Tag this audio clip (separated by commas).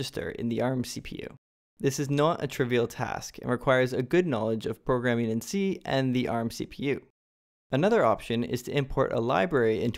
Speech